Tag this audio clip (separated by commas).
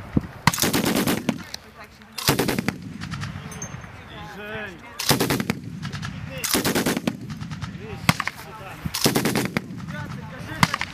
machine gun shooting